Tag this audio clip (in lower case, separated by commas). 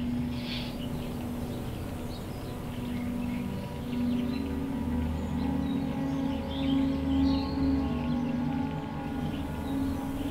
ambient music, music